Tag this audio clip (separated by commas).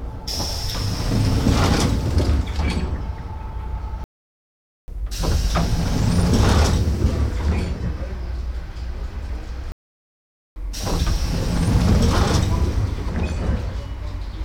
Sliding door, Vehicle, home sounds, Rail transport, Train, Door